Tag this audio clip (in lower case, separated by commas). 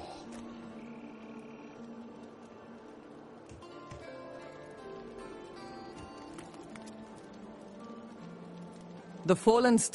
speech, music